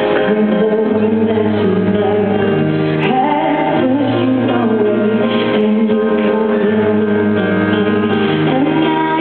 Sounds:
music

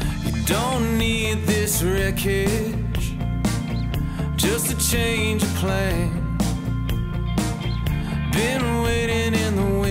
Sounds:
blues
music

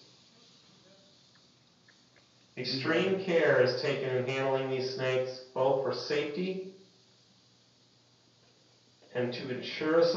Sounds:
inside a small room
speech

